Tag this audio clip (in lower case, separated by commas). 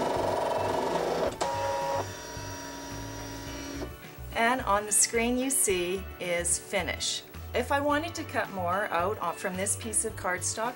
music, inside a small room, speech